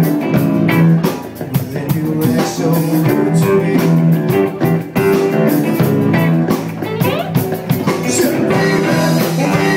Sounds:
music
blues
singing

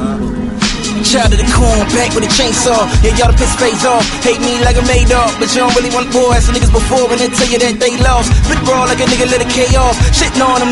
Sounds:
music

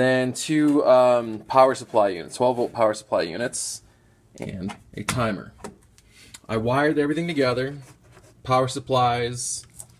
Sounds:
speech

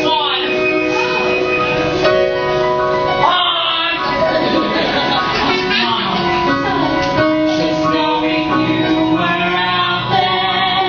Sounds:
speech
music

